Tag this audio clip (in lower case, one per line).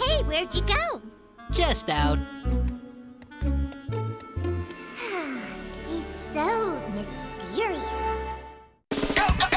speech
music